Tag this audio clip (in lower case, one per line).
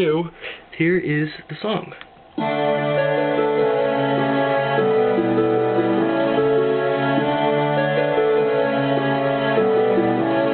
speech
music